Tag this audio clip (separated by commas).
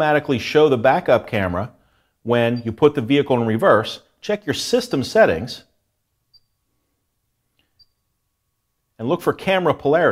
Speech